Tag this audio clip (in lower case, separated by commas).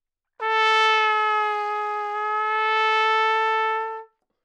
brass instrument, musical instrument, music, trumpet